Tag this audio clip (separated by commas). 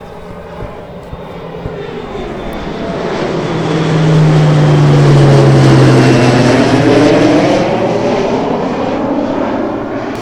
Aircraft, airplane, Vehicle